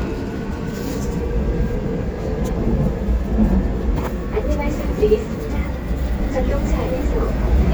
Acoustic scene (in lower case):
subway train